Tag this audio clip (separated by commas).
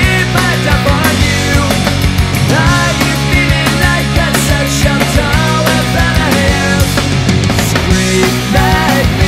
Music, Exciting music